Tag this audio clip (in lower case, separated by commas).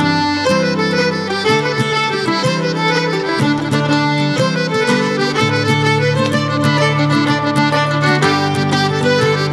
musical instrument, music, violin